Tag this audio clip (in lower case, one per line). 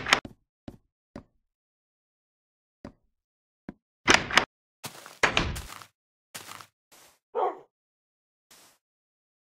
door
bow-wow